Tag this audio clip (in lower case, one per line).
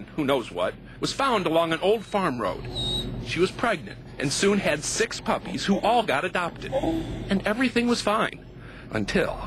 speech